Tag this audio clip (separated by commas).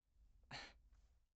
Respiratory sounds, Breathing